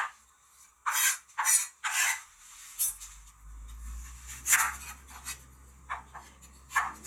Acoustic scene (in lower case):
kitchen